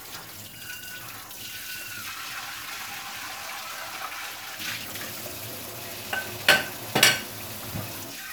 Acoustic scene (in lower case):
kitchen